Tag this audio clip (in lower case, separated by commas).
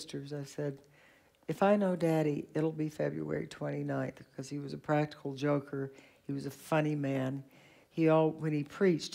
speech